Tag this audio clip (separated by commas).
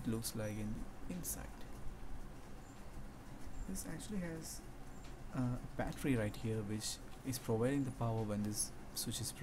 Speech